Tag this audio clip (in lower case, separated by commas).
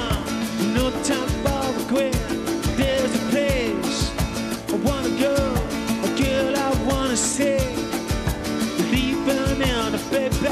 music, singing